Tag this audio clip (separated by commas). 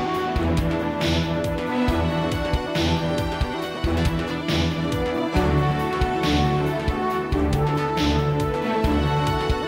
Music